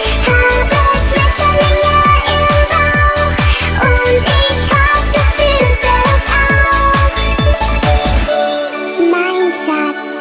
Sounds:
Music, Singing

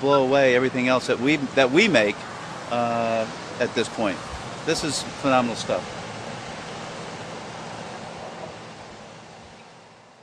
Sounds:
Vehicle, Car

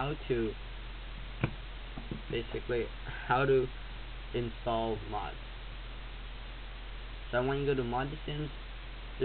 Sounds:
Speech

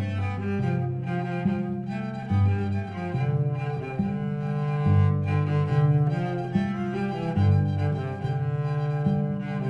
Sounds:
playing cello

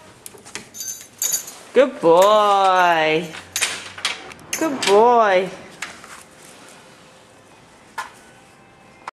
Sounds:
Speech

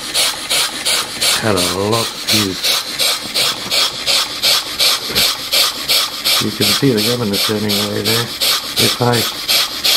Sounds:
Speech, Steam, Engine

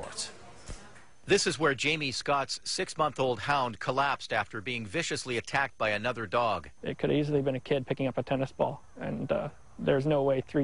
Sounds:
Speech

